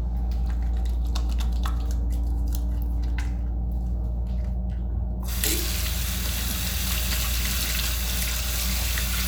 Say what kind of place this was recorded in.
restroom